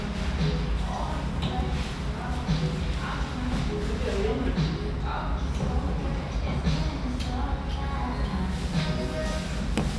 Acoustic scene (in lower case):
restaurant